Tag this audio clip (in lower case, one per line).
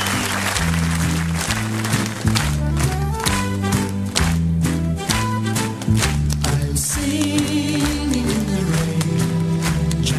male singing
music